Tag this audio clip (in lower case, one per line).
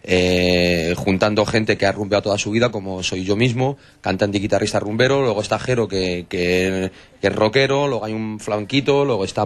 speech